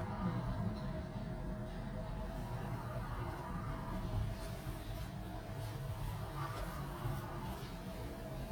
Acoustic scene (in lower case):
elevator